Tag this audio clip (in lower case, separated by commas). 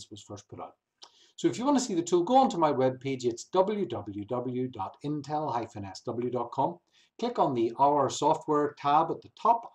speech